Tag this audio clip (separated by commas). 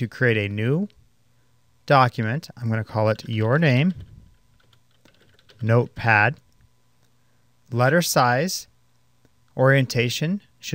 Speech